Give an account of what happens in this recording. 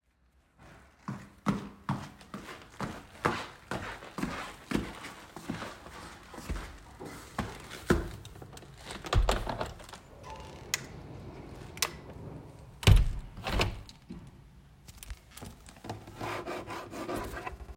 I walked upstairs to my room and opened the window. After standing near the open window briefly, I closed it again. I then touched and lightly scratched the window glass before stepping away.